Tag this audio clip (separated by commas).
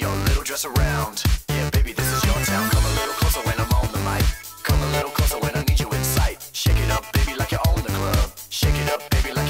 Music